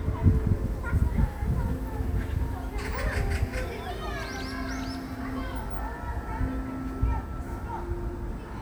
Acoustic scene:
park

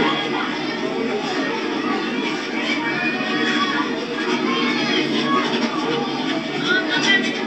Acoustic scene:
park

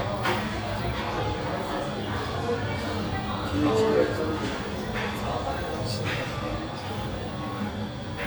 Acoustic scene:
cafe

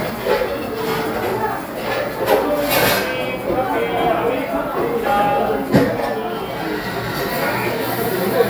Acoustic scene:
cafe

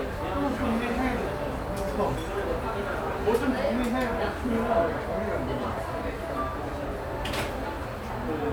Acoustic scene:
cafe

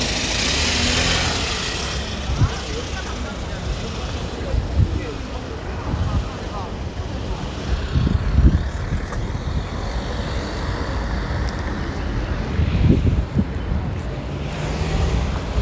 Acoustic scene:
residential area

